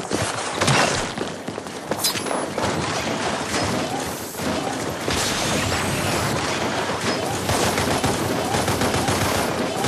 Ruffling noises then gunshots